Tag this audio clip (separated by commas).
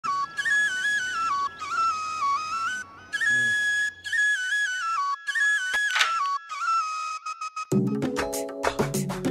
Music, inside a small room